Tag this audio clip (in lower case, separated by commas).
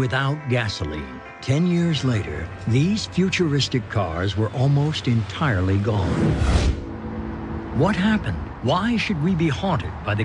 car, speech, music